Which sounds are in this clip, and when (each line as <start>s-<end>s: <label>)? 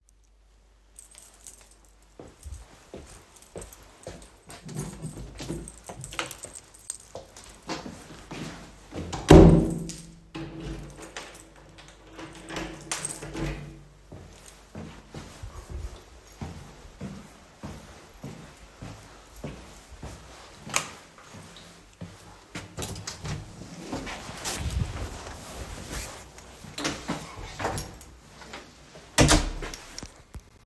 0.8s-14.2s: keys
0.9s-8.6s: footsteps
7.5s-14.0s: door
13.9s-22.5s: footsteps
20.6s-21.1s: light switch
21.9s-30.6s: door